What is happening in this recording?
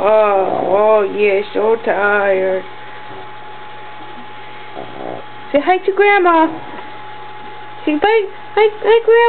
An adult female speaks and something snorts